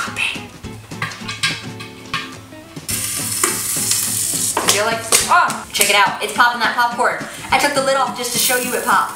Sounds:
popping popcorn

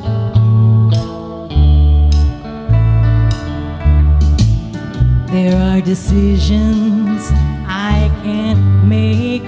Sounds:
Music

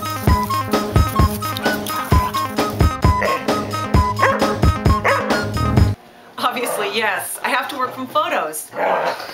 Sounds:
Bow-wow, Speech, Music

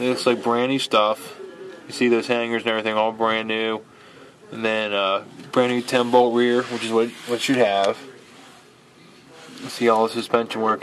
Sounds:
Speech

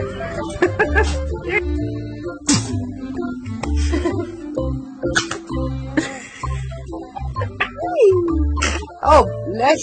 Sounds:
people sneezing

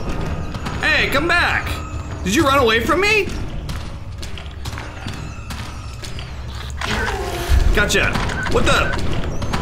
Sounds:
Speech

